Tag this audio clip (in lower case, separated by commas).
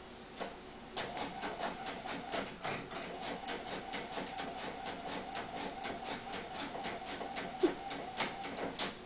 printer